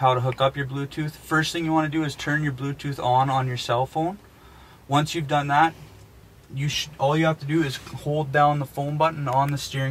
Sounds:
Speech

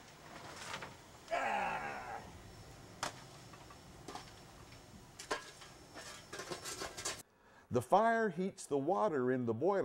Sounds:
Speech

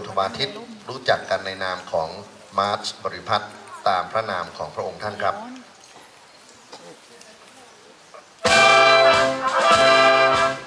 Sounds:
Speech, Music, Rustling leaves

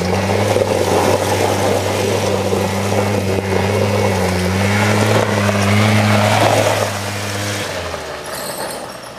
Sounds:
Motorcycle, outside, rural or natural, Vehicle

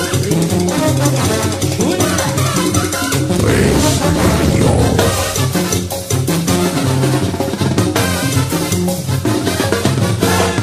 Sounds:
Drum kit, Bass drum, Drum roll, Percussion, Rimshot, Drum

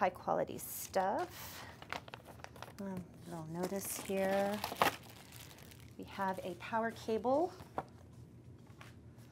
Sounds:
Speech

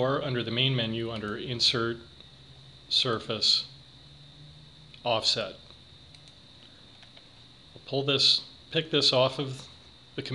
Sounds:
Speech

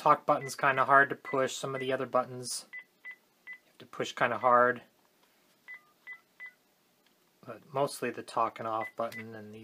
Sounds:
Speech, DTMF, Telephone, inside a small room

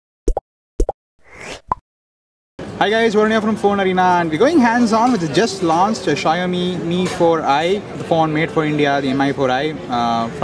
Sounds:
Speech

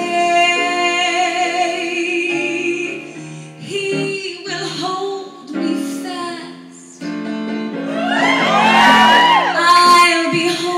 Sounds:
Female singing, Music

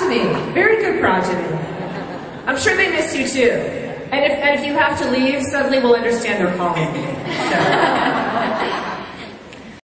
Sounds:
Speech

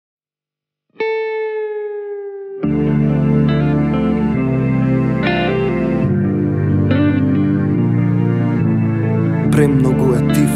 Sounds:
Music, Speech

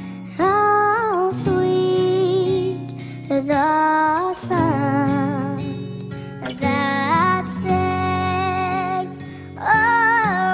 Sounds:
child singing

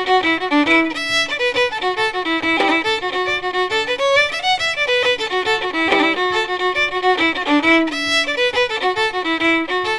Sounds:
Violin, Music, Musical instrument

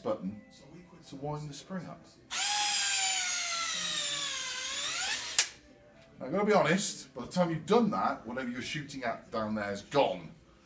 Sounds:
Speech, inside a small room

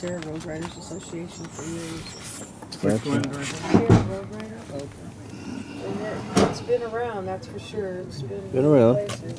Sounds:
Speech

